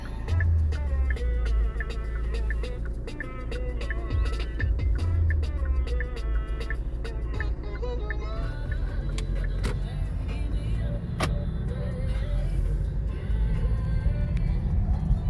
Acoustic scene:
car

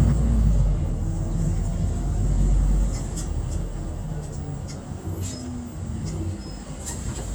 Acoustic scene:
bus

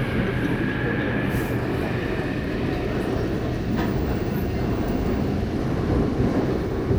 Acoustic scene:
subway train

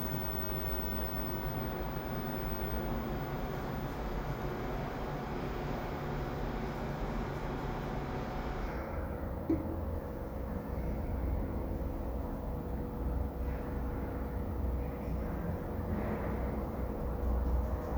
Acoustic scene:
elevator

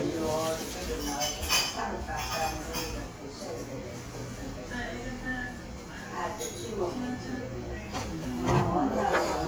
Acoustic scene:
crowded indoor space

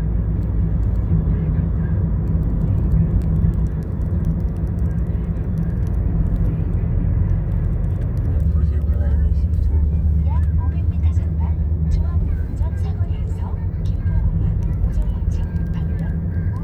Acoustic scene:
car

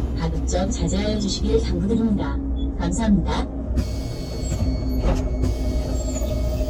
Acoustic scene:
bus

